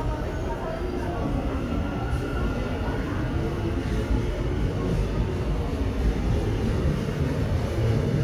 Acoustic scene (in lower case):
subway station